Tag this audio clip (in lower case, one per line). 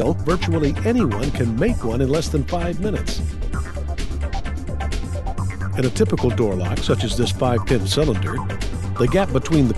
music
speech